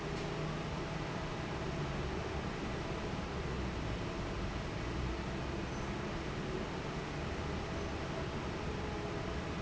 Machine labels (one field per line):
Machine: fan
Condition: normal